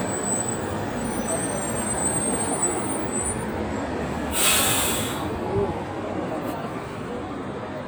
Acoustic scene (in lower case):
street